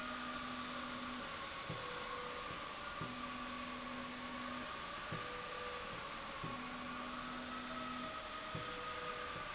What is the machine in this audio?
slide rail